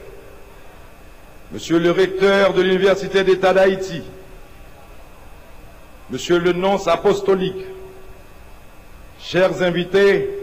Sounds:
monologue, Male speech, Speech

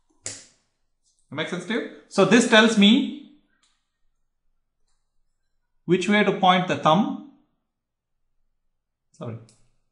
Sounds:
inside a small room, Speech

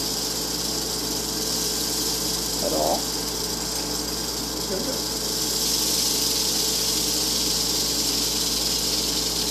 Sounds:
Speech, inside a small room

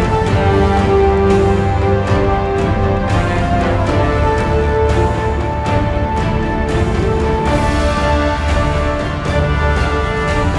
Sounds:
Music

